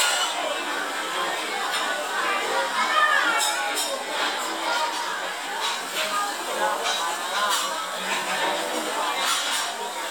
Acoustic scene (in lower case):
restaurant